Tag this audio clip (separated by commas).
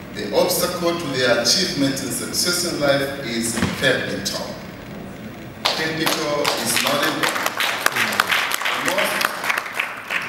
Speech, monologue, Male speech